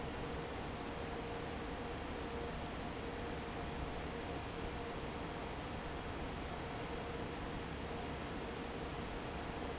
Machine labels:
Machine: fan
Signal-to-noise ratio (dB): 0 dB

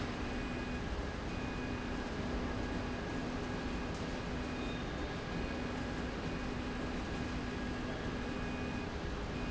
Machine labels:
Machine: slide rail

